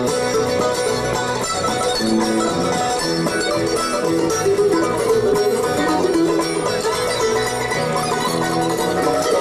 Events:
[0.00, 9.40] music

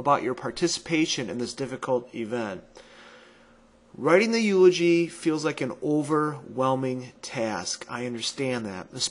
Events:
[0.00, 2.63] male speech
[0.00, 9.10] mechanisms
[2.75, 2.82] tick
[2.78, 3.54] breathing
[4.00, 7.13] male speech
[7.24, 7.29] tick
[7.24, 9.10] male speech
[7.80, 7.88] tick

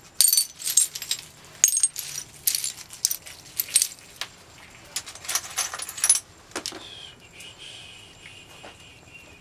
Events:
[0.00, 4.26] glass
[0.00, 9.40] mechanisms
[4.92, 6.25] glass
[6.52, 6.87] generic impact sounds
[6.73, 9.40] human sounds
[7.15, 7.41] generic impact sounds
[8.21, 8.31] generic impact sounds
[8.60, 8.73] generic impact sounds

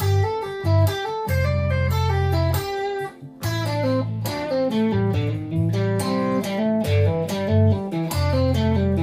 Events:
[0.00, 9.02] music

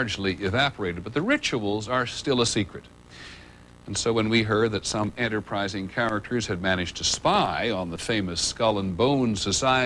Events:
[0.00, 2.86] man speaking
[0.00, 9.85] background noise
[3.77, 9.85] man speaking

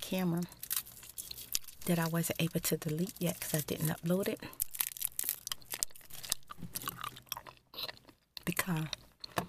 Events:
[0.00, 0.45] woman speaking
[0.39, 6.33] crinkling
[1.78, 4.56] woman speaking
[6.44, 9.45] chewing
[8.41, 8.86] woman speaking
[9.31, 9.45] tap

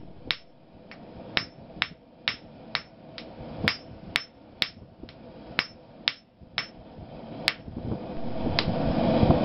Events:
[0.00, 9.44] mechanisms
[0.25, 0.44] jackhammer
[0.85, 0.96] jackhammer
[1.32, 1.56] jackhammer
[1.81, 1.98] jackhammer
[2.25, 2.45] jackhammer
[2.73, 2.89] jackhammer
[3.14, 3.29] jackhammer
[3.65, 3.84] jackhammer
[4.11, 4.32] jackhammer
[4.59, 4.82] jackhammer
[5.07, 5.21] jackhammer
[5.57, 5.78] jackhammer
[6.05, 6.21] jackhammer
[6.56, 6.77] jackhammer
[7.41, 7.60] jackhammer
[8.54, 8.72] jackhammer

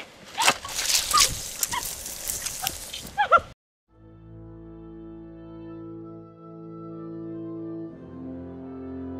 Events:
[0.00, 3.53] background noise
[0.30, 1.76] generic impact sounds
[1.03, 1.32] giggle
[1.58, 1.87] giggle
[2.02, 3.12] generic impact sounds
[2.50, 2.73] giggle
[3.06, 3.45] giggle
[3.84, 9.15] music

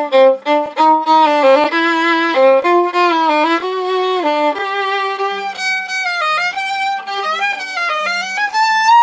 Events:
[0.00, 9.02] music

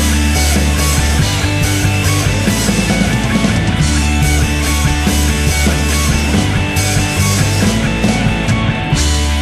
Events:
[0.01, 9.41] music

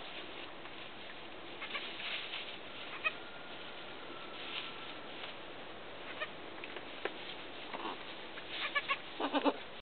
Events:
[0.00, 9.81] background noise
[6.62, 9.63] generic impact sounds
[8.64, 9.05] goat
[9.22, 9.63] animal

